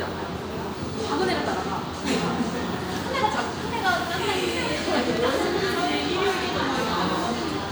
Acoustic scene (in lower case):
cafe